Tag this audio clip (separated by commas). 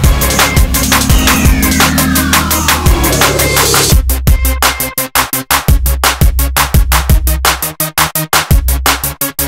Music